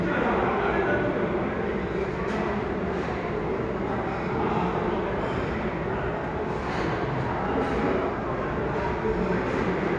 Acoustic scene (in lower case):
restaurant